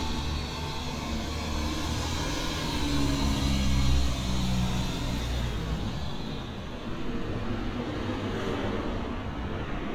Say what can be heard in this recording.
medium-sounding engine